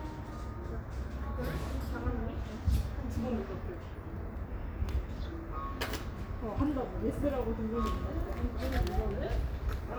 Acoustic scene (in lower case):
residential area